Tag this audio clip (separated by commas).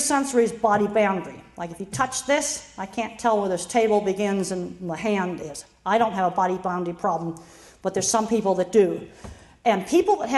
Speech, woman speaking, Narration